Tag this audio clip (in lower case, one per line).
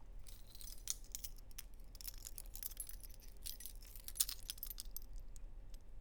domestic sounds
keys jangling